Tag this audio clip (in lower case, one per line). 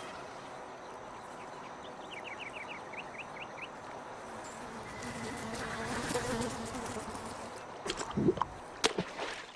animal